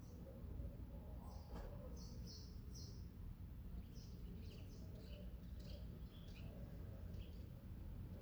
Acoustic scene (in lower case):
residential area